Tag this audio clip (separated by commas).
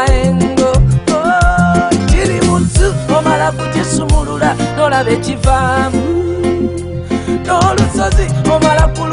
Music